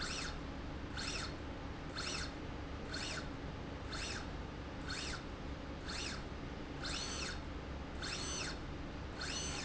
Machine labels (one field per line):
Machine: slide rail